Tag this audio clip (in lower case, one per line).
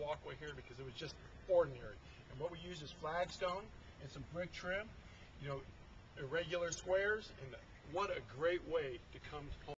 speech